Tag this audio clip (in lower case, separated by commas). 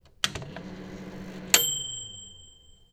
microwave oven, home sounds